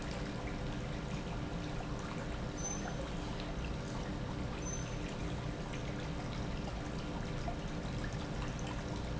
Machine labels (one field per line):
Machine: pump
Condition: normal